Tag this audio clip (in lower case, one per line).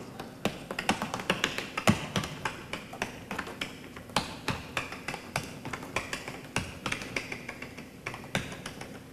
tap dancing